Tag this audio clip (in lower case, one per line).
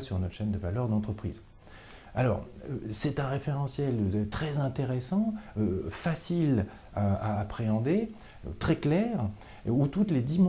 speech